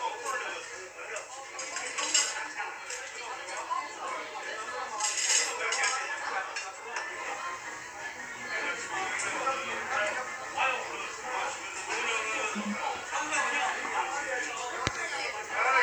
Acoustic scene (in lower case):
restaurant